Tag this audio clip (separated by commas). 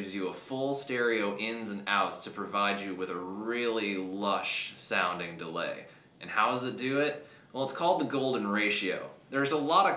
Speech